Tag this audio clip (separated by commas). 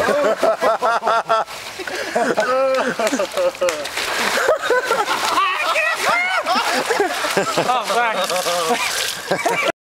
Speech, Gurgling